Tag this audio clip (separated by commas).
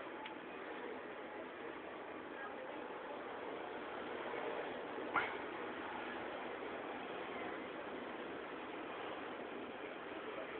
Engine